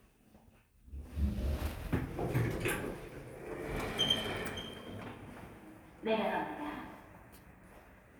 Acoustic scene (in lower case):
elevator